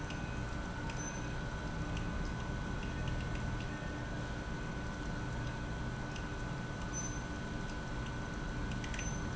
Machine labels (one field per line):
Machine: pump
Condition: abnormal